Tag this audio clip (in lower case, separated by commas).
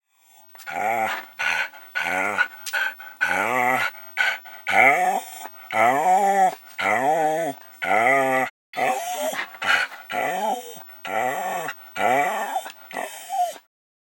domestic animals, animal, dog